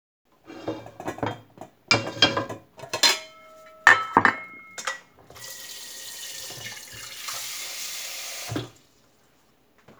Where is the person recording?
in a kitchen